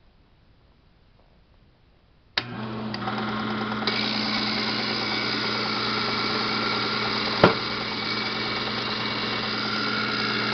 Clicking and vibrations with mechanical humming